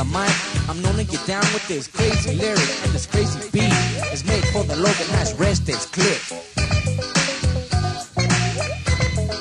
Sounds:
Disco, Music, Rapping

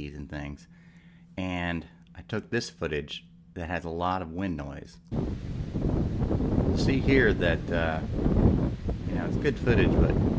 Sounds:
Speech

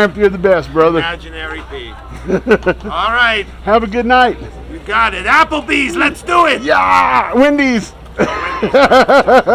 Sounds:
Speech

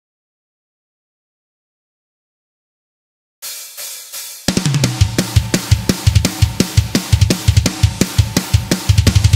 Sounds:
Music, Drum, Hi-hat, Heavy metal

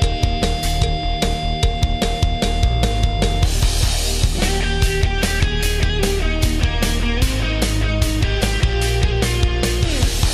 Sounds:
Music

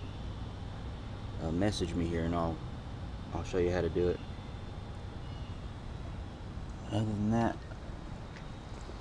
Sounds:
Speech

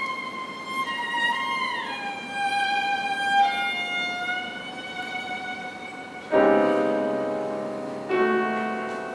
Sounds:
Music, Musical instrument, Violin, Pizzicato

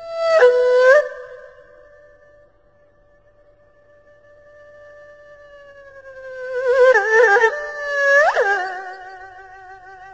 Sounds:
Music

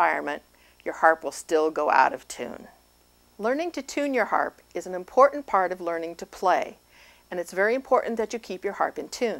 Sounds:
Speech

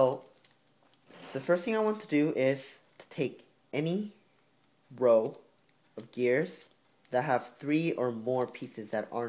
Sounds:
Speech

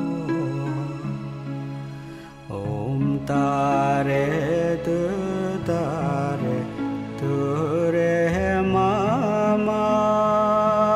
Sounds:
Mantra, Music

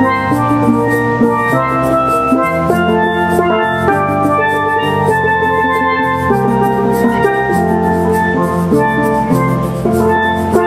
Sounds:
Music

